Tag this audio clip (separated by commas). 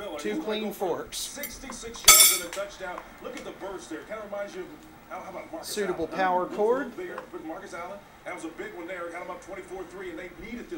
Speech